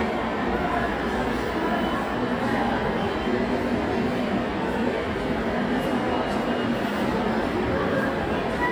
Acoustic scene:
subway station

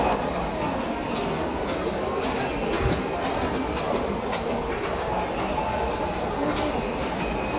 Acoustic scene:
subway station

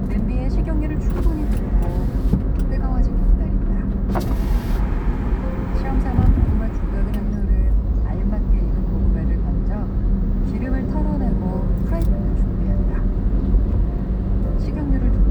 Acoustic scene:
car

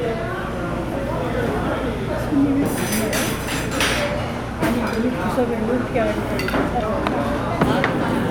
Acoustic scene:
restaurant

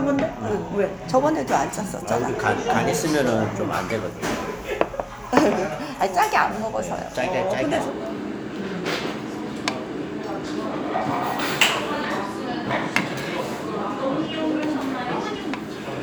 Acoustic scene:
restaurant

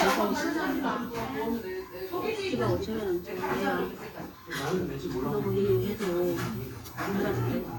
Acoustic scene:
restaurant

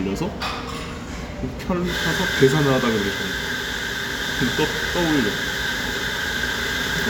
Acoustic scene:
cafe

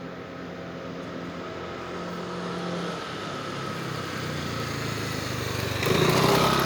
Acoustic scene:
residential area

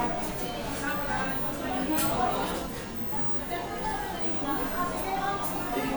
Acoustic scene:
cafe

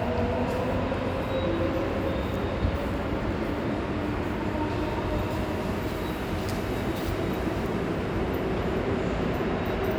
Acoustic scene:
subway station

